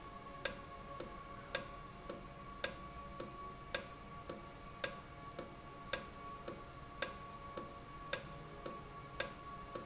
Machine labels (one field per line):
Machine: valve